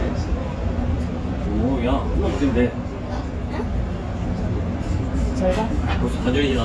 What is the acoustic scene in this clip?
restaurant